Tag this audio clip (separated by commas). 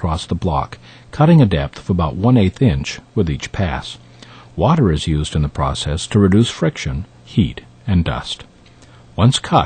Speech